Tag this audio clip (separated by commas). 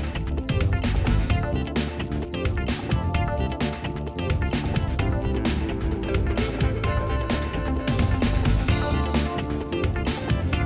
Music